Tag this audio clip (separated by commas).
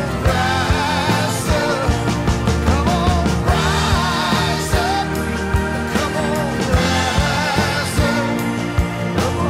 Rock music